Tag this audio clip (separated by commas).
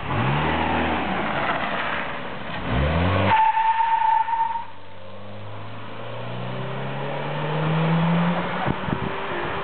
Motor vehicle (road), Car passing by, Vehicle, Car